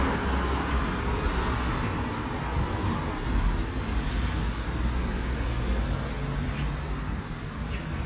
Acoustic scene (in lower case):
street